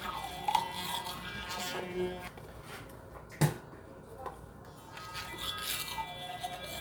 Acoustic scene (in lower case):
restroom